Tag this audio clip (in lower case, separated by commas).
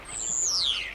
wild animals, animal, bird